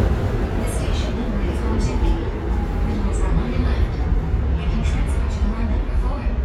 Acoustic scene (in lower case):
subway train